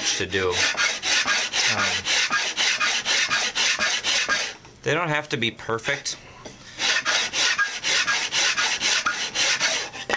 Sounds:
filing (rasp), rub

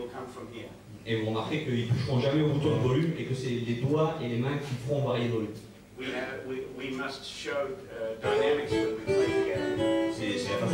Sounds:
guitar, strum, musical instrument, acoustic guitar, plucked string instrument, music, speech

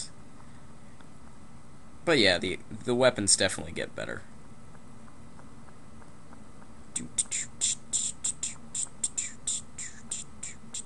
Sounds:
speech, inside a large room or hall

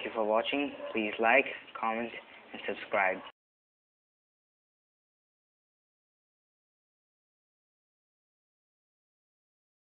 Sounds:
speech

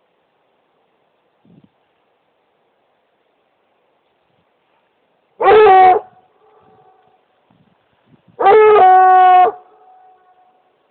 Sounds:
dog baying

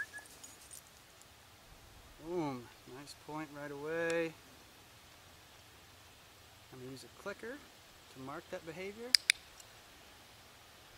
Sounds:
speech

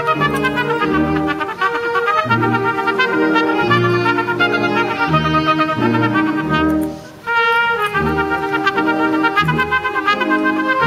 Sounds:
classical music, trumpet, brass instrument, music

